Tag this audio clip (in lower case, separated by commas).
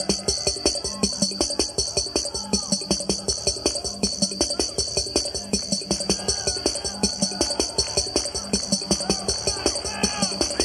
music, bass drum, musical instrument, drum